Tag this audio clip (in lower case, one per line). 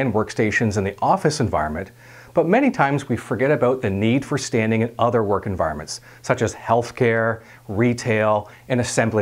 speech